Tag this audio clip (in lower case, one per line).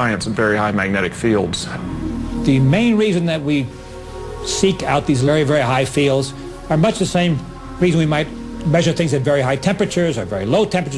music
speech